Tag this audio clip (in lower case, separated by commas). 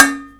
domestic sounds, dishes, pots and pans